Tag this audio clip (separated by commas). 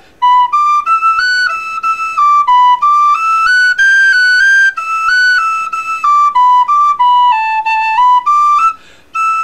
Music, inside a small room, Musical instrument